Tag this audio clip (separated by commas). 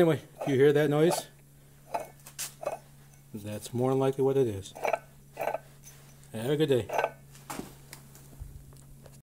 Speech